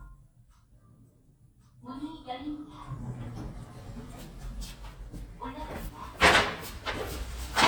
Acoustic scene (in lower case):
elevator